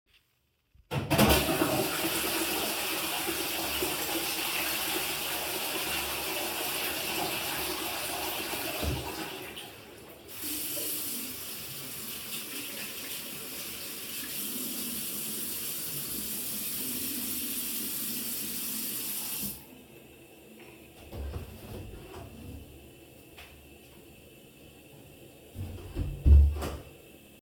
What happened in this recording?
I flushed the toilet, washed my hands, and then left the bathroom by opening and closing the bathroom door.